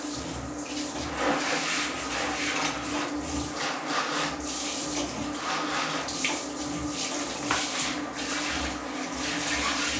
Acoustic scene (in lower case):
restroom